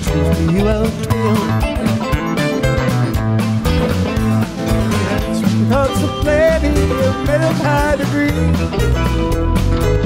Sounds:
orchestra, music

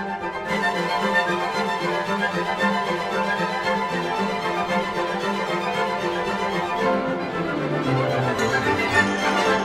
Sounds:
music

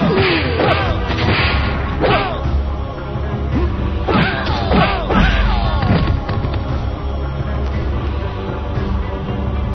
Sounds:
music

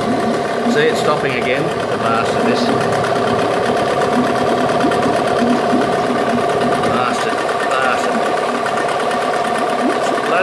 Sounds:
speech

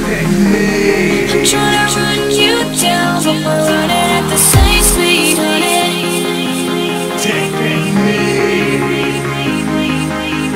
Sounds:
music, electronic music, dubstep

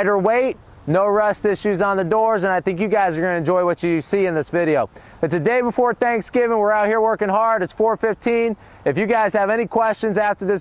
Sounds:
speech

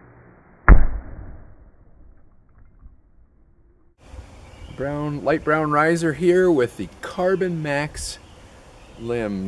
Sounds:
speech

